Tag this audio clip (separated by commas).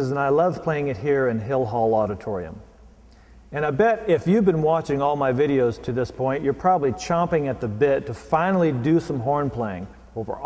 Speech